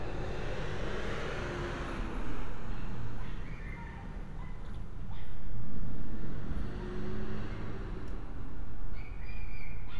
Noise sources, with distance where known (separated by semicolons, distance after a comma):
engine of unclear size, far